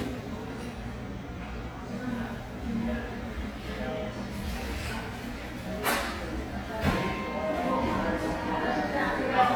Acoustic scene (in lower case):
crowded indoor space